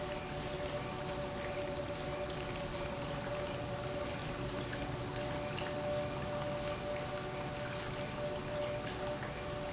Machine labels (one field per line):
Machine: pump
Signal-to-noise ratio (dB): -6 dB